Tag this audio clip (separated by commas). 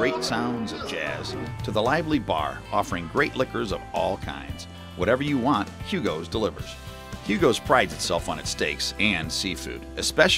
Music, Speech